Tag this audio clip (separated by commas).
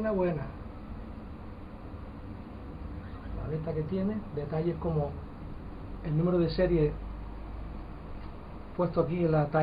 Speech